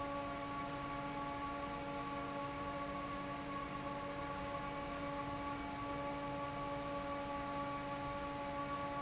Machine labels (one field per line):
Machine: fan